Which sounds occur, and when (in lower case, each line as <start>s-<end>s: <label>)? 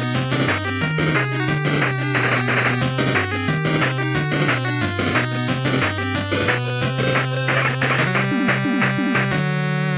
0.0s-9.9s: music
0.0s-9.9s: video game sound